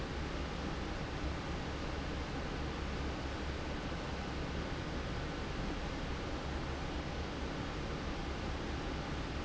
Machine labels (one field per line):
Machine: fan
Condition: normal